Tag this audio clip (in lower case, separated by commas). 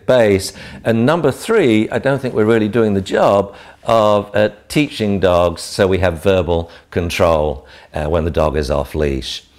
speech